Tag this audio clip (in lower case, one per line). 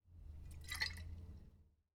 liquid
splash